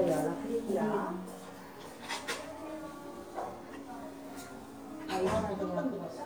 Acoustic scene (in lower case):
crowded indoor space